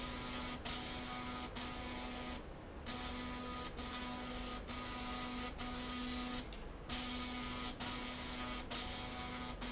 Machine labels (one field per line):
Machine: slide rail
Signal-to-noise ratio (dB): 6 dB